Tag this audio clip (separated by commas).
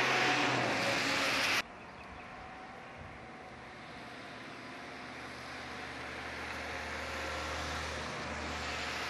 train wagon, Vehicle, Rail transport, Train